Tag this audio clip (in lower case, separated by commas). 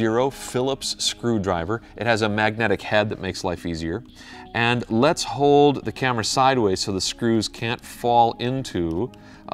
speech, music